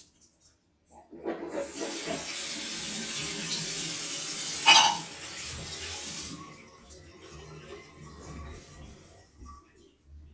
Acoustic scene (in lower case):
restroom